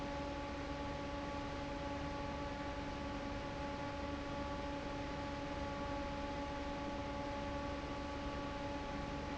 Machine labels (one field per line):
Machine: fan